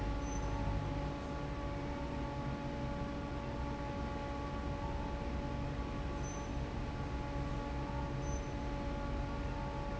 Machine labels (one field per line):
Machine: fan